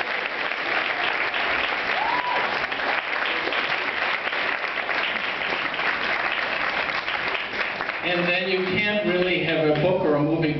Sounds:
male speech, speech

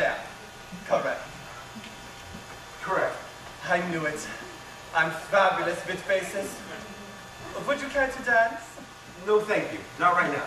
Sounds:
speech

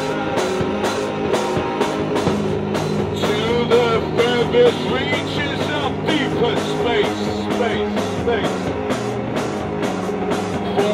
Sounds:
singing, music

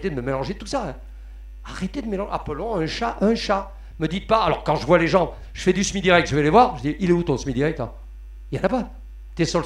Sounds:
speech

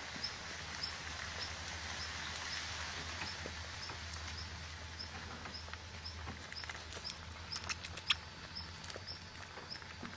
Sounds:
animal, domestic animals, outside, rural or natural

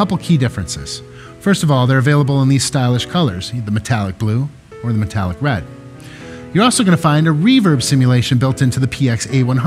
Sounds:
music, speech

